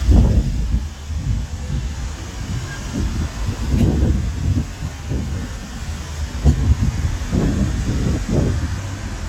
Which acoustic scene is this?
street